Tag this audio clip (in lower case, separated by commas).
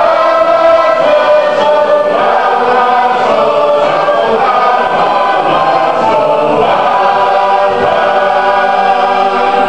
choir, male singing, female singing